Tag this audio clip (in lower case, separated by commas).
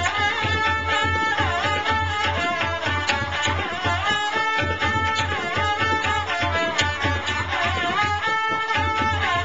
music, classical music, traditional music